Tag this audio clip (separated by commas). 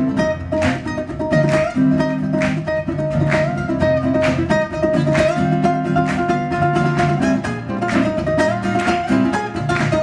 Ukulele, Music, Plucked string instrument, Musical instrument